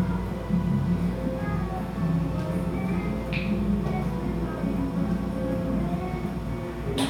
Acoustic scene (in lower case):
cafe